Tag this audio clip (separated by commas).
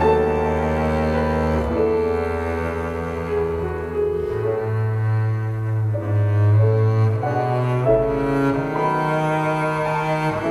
playing double bass